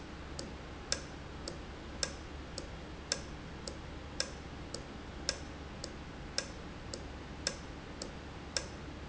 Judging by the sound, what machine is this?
valve